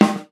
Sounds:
percussion, snare drum, music, drum, musical instrument

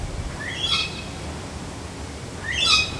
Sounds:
wild animals, animal, bird

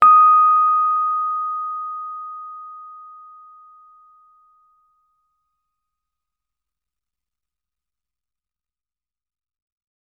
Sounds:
music, keyboard (musical), piano, musical instrument

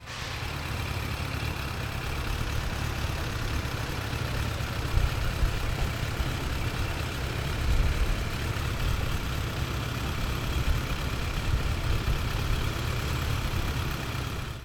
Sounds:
motor vehicle (road), vehicle

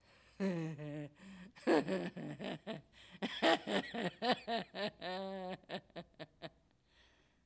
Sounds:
human voice, laughter

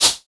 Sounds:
musical instrument, music, percussion, rattle (instrument)

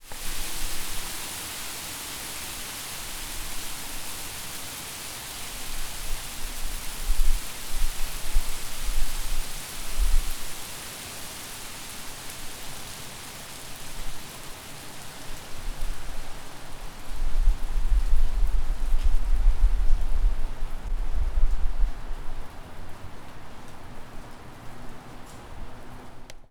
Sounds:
rain, water

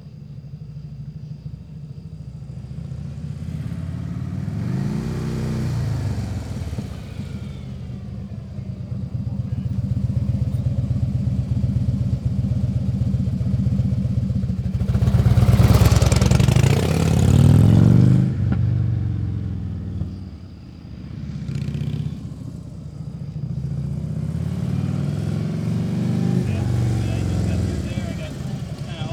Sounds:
motorcycle, vehicle, man speaking, human voice, idling, engine, speech, accelerating, motor vehicle (road)

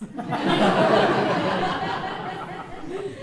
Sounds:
laughter, human voice

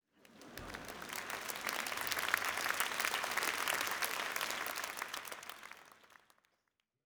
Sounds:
human group actions, crowd, applause

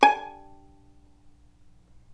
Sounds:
bowed string instrument, musical instrument, music

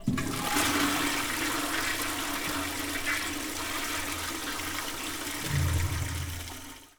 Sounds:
toilet flush, home sounds

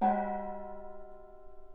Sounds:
percussion, gong, musical instrument, music

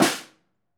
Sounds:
music, musical instrument, drum, percussion, snare drum

